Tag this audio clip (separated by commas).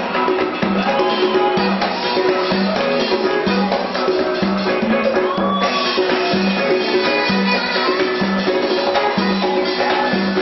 Percussion, Music